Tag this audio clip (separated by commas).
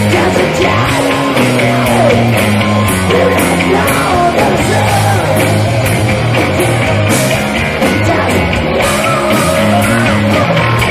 Guitar, Musical instrument, Rock and roll, Singing, Music